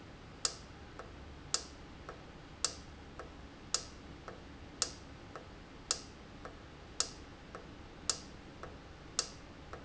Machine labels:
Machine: valve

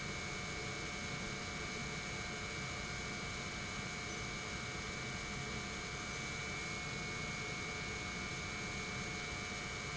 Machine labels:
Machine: pump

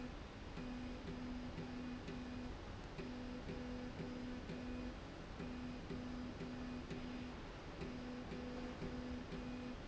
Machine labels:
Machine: slide rail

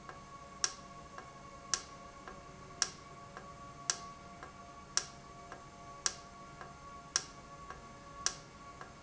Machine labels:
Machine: valve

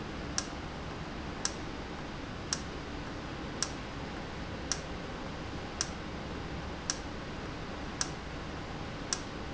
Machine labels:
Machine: valve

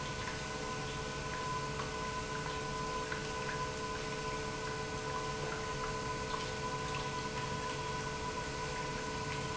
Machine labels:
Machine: pump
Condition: normal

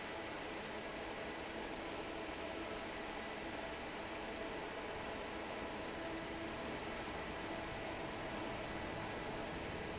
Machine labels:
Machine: fan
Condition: normal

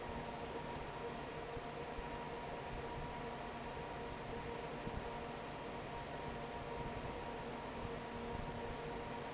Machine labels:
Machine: fan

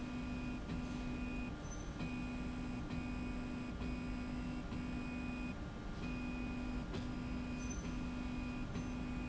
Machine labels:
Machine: slide rail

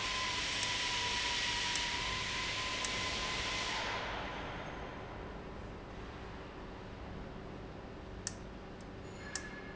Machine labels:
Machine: valve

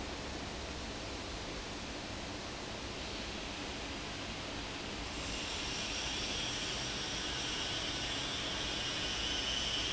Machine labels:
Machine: fan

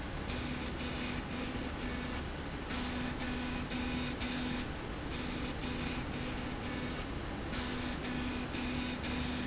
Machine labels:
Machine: slide rail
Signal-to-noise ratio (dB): -6 dB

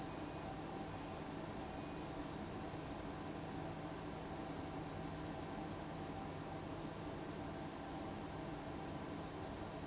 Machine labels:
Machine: fan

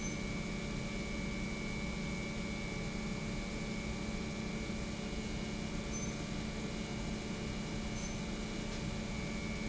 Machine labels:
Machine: pump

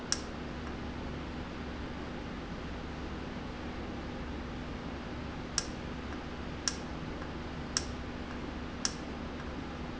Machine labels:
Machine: valve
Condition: normal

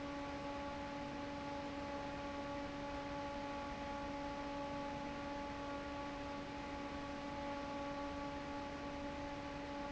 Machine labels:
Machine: fan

